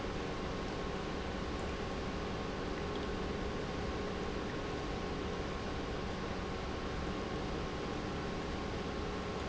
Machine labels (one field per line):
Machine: pump